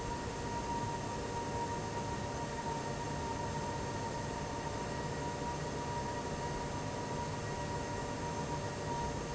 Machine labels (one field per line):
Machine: fan